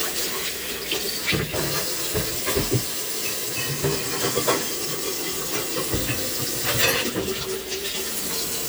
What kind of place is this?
kitchen